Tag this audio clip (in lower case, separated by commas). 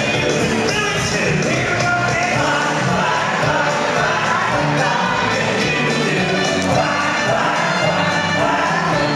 music